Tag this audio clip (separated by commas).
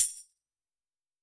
Music, Tambourine, Musical instrument, Percussion